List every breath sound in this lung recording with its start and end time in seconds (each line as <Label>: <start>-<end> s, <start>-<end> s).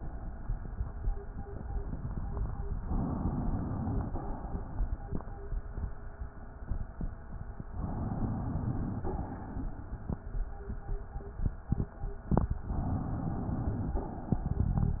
Inhalation: 2.79-4.00 s, 7.74-9.05 s, 12.73-13.97 s
Exhalation: 4.00-4.99 s, 9.05-10.13 s, 13.97-14.80 s